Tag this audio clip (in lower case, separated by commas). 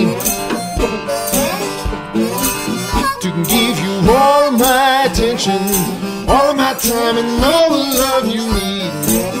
harmonica, woodwind instrument